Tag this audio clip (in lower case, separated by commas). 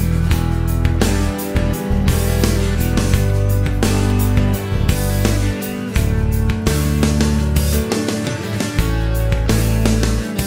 music